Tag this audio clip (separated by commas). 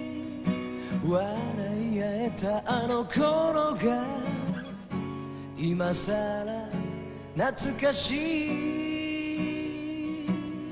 Music